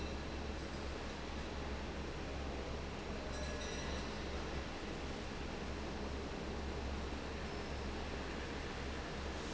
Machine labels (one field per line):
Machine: fan